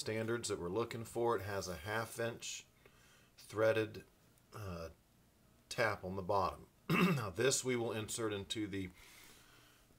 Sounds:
speech

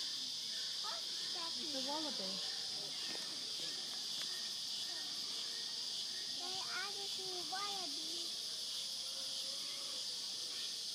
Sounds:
speech
honk

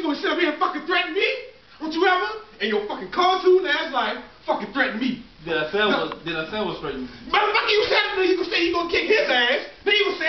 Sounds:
speech

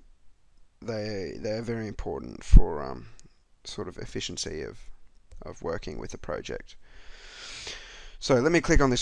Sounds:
speech

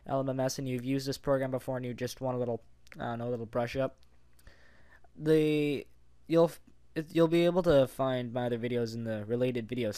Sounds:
speech

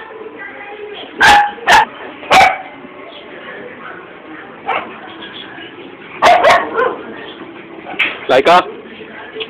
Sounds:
speech
domestic animals
animal

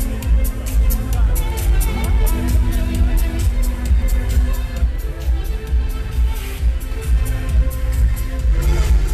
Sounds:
music
electronic music

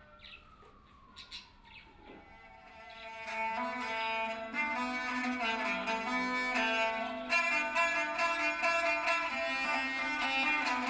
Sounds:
music

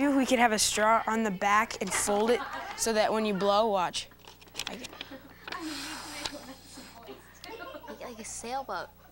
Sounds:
speech

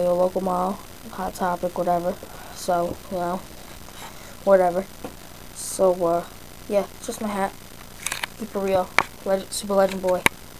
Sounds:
speech

